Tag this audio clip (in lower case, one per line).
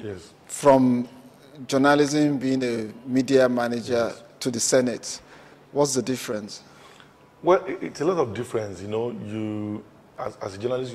speech